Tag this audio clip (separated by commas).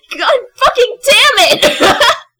Laughter, Female speech, Human voice, Speech